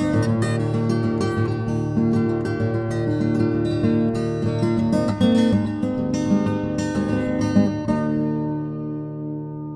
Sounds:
music

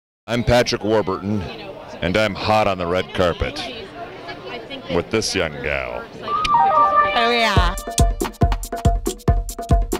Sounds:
speech
music

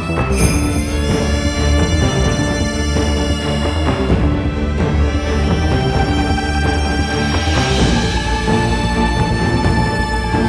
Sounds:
sound effect
music

